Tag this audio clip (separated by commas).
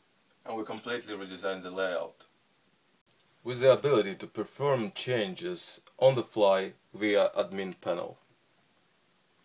Speech